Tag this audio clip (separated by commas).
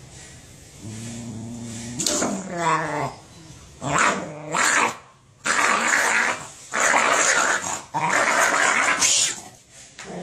dog growling